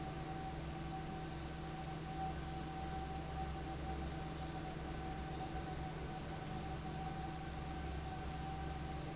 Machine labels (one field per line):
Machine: fan